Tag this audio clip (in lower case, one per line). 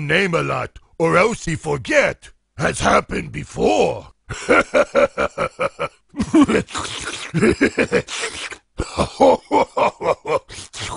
speech